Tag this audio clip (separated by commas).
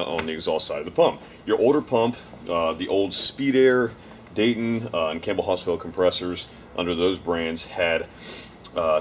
Speech